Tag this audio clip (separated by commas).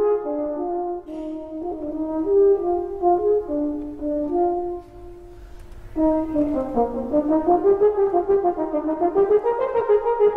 playing french horn